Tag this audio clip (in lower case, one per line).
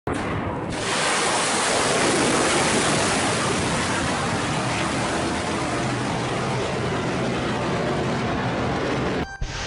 missile launch